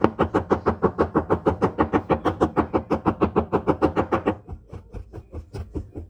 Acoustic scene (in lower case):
kitchen